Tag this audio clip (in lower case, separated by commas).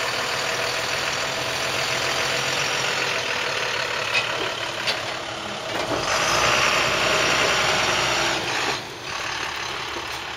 truck, vehicle